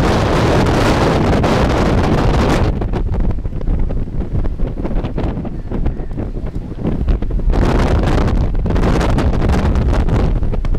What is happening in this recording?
Close, intense wind with background voice